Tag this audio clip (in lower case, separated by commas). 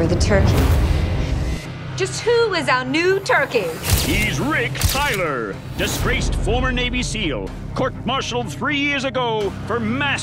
music, speech